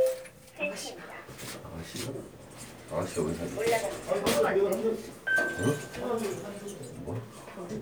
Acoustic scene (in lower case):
elevator